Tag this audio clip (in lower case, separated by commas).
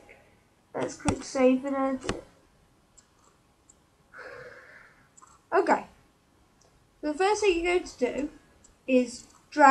clicking